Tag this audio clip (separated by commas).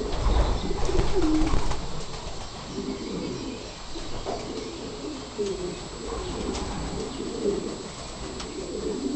flapping wings